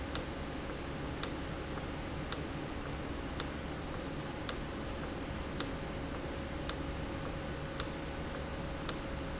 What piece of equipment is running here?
valve